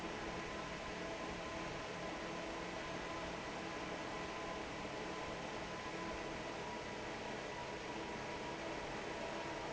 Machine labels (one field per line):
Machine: fan